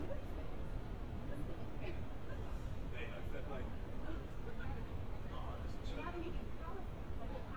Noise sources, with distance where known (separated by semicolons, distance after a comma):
person or small group talking, near